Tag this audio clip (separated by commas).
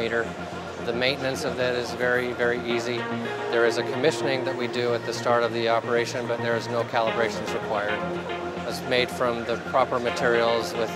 Music, Speech